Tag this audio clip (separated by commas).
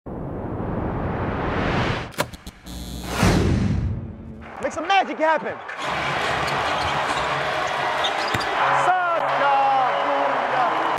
Speech, Basketball bounce